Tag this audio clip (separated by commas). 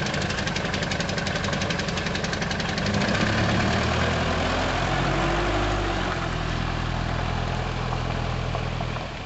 Vehicle, outside, rural or natural, Car